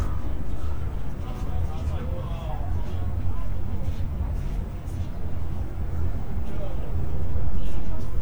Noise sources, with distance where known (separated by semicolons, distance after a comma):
person or small group talking, far